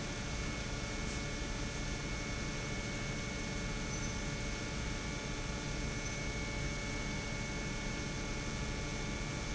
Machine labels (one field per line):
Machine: pump